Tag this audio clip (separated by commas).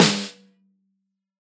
Music, Snare drum, Drum, Musical instrument, Percussion